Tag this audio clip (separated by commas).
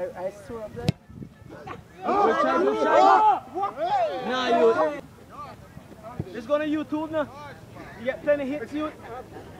Speech